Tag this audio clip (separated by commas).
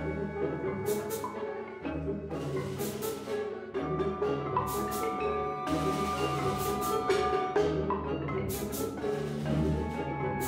Drum, Percussion, Snare drum, Drum roll, Bass drum